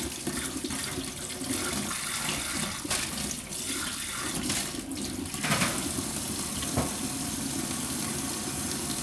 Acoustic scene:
kitchen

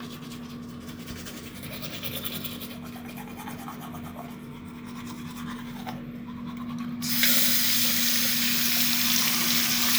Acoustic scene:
restroom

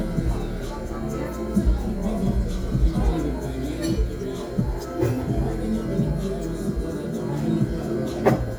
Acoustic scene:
crowded indoor space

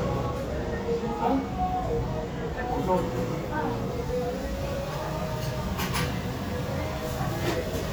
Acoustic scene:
restaurant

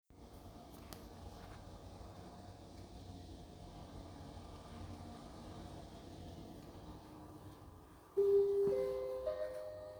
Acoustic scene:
elevator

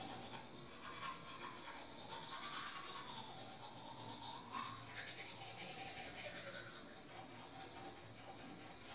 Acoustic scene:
restroom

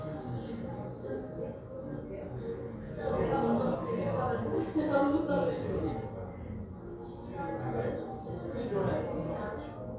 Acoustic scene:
crowded indoor space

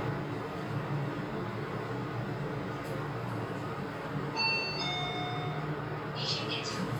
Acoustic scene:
elevator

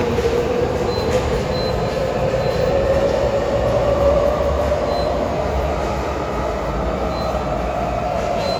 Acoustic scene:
subway station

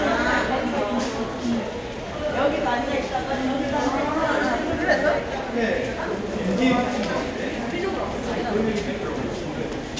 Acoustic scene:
crowded indoor space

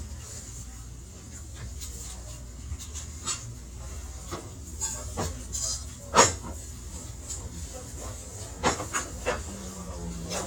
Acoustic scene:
restaurant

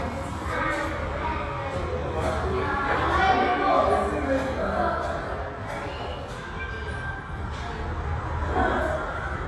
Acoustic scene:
restaurant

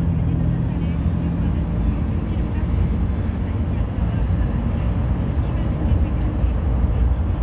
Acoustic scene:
bus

